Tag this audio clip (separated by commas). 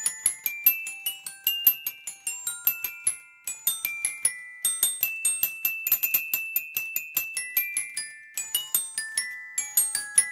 Marimba, Mallet percussion, Glockenspiel